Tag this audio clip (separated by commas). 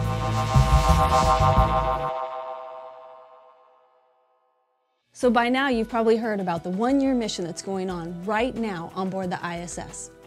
Speech, Music